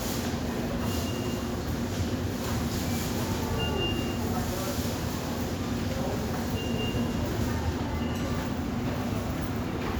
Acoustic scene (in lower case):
subway station